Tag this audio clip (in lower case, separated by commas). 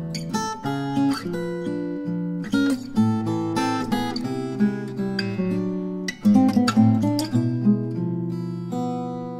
musical instrument, strum, guitar, music, acoustic guitar, plucked string instrument